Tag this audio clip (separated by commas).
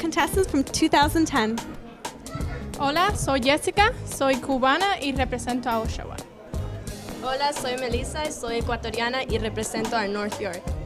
Music, Speech